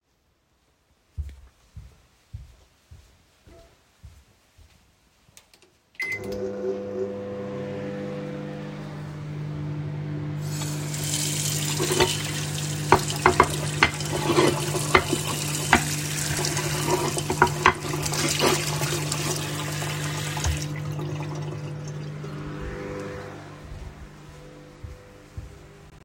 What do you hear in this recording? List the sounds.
footsteps, microwave, running water, cutlery and dishes